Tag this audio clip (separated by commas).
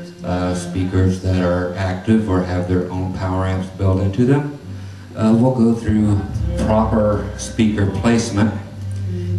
Speech